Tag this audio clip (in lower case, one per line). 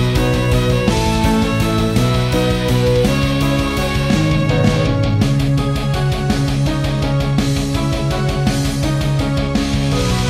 music
musical instrument
fiddle